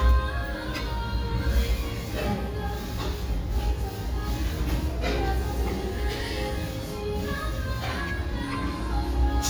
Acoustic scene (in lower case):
restaurant